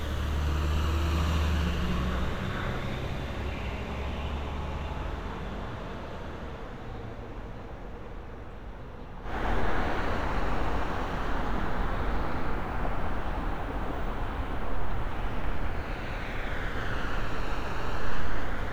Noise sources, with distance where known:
engine of unclear size

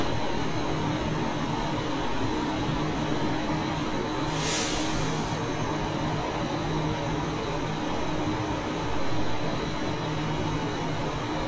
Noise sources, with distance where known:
large-sounding engine, near

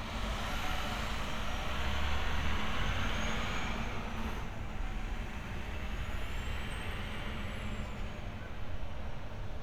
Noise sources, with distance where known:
large-sounding engine, near

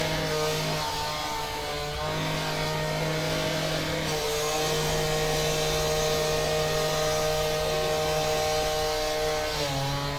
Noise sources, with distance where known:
large rotating saw, near

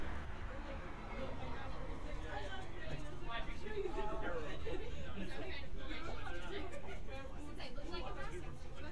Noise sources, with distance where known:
person or small group talking, near

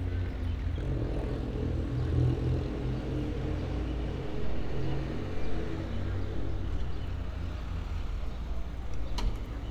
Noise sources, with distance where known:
engine of unclear size, near

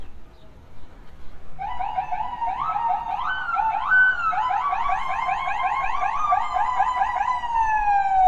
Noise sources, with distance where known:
unidentified alert signal

